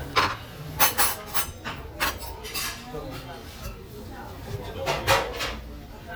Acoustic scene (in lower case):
restaurant